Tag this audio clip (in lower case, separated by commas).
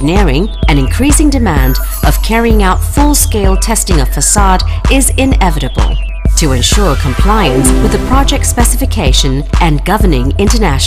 music, speech